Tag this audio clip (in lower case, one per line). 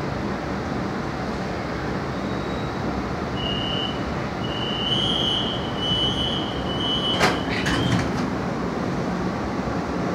underground